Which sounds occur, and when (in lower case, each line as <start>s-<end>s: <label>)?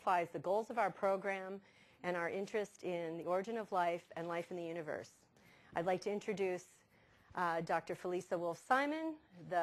0.0s-9.6s: background noise
0.0s-1.6s: female speech
2.0s-2.6s: female speech
2.8s-5.0s: female speech
5.7s-6.7s: female speech
7.3s-9.2s: female speech